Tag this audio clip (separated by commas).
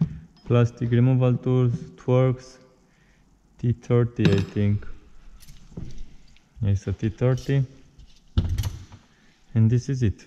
opening or closing car doors